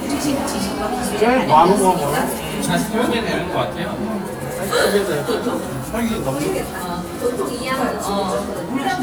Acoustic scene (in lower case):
cafe